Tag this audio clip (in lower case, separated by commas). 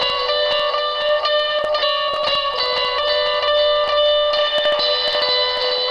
music, musical instrument, guitar, plucked string instrument